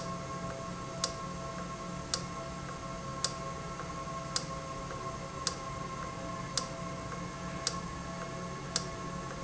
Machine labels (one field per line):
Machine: valve